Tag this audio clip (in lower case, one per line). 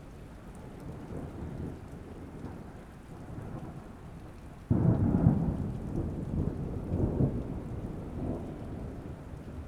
thunder
thunderstorm